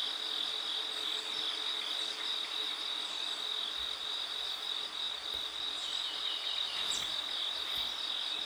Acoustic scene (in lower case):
park